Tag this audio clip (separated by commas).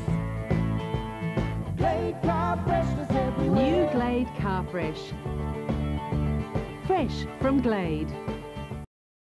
Music, Speech